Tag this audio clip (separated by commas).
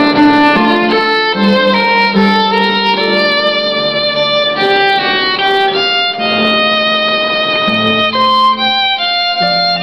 fiddle, Musical instrument, Music